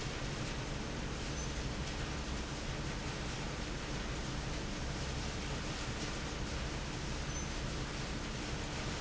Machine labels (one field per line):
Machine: fan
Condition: normal